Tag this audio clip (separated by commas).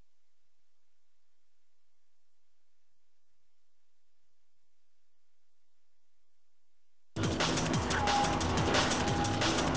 Music